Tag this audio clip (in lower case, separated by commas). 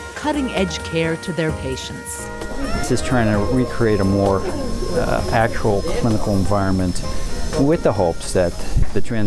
speech